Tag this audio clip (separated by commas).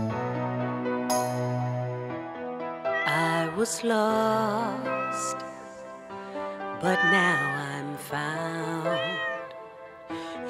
Music, Animal, Cat, Meow, Domestic animals